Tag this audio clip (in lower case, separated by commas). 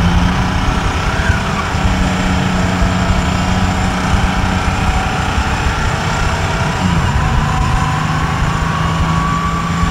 vehicle, bus, outside, urban or man-made